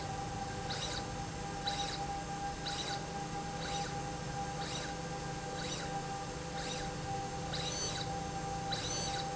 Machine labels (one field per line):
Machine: slide rail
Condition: abnormal